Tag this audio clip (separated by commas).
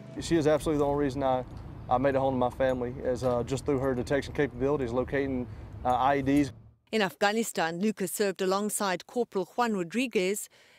Speech